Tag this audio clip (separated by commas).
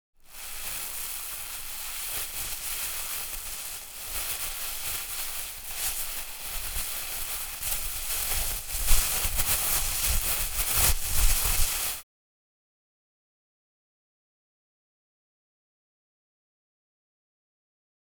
Crumpling